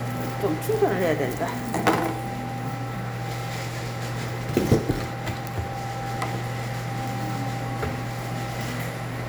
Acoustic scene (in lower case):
cafe